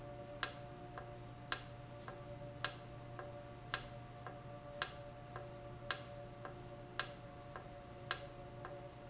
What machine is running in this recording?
valve